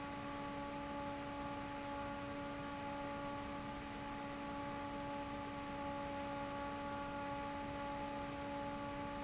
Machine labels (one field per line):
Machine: fan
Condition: normal